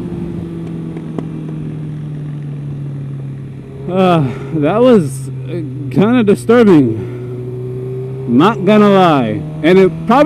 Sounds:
Motorcycle, Motor vehicle (road), Accelerating, Speech

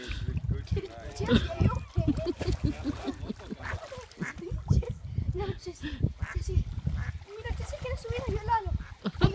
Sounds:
Quack, Speech, Duck, Animal

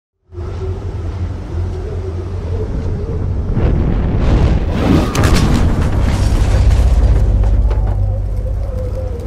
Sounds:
Music, Boom

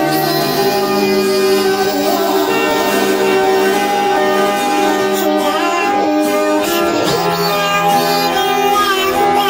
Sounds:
Music

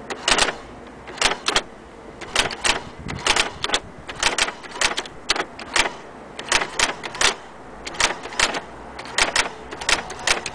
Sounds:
Typewriter, typing on typewriter

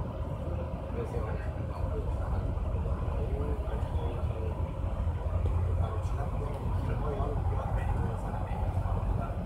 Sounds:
Vehicle, Speech

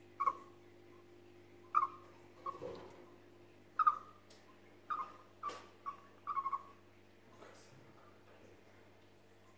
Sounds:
chipmunk chirping

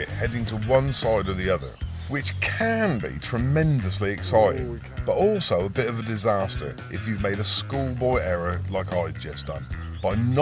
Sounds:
Speech, Music

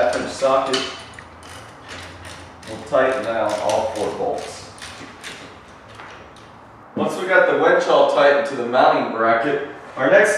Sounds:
inside a small room, Speech, inside a large room or hall

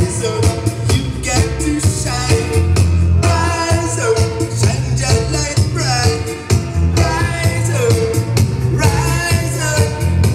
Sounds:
Music

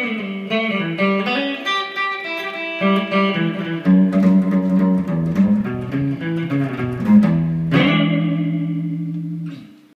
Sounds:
Plucked string instrument, Acoustic guitar, Strum, Music, Guitar, Musical instrument

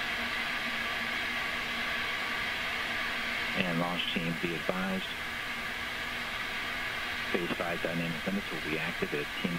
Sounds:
Speech

